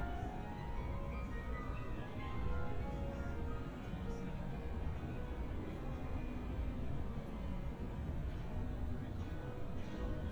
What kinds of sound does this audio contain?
music from a fixed source